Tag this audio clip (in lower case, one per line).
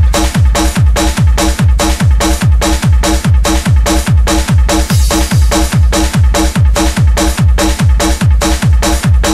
music